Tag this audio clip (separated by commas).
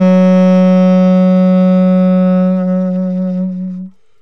Music, Musical instrument, Wind instrument